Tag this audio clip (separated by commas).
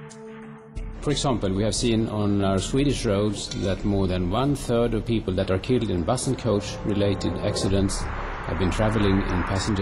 Speech, Vehicle, Music